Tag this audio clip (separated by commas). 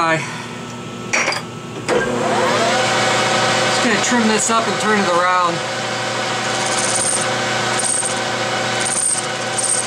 lathe spinning